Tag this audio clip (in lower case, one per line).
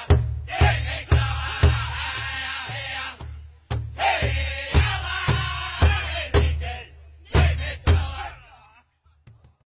music